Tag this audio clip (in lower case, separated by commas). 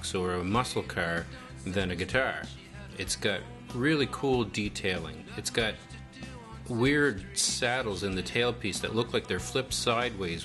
speech, electric guitar, guitar, music